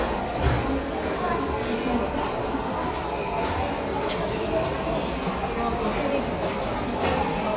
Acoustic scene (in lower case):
subway station